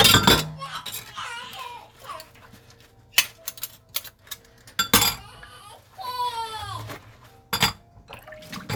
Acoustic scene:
kitchen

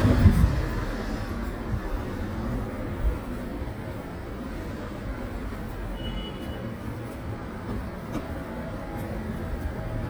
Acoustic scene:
residential area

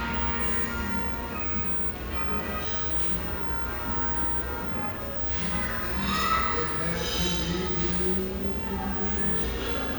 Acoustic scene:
restaurant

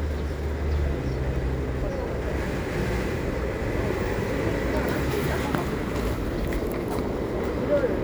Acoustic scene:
residential area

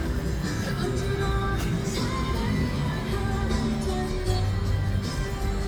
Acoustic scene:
street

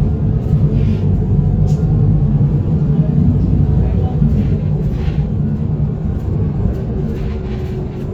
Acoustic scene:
bus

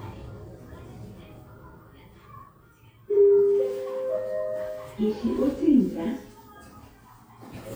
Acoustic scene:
elevator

